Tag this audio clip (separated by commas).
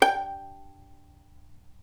Bowed string instrument, Music, Musical instrument